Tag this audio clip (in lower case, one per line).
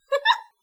human voice
giggle
laughter